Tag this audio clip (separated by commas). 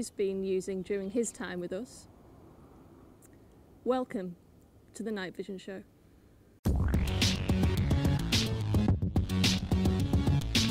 Speech, Music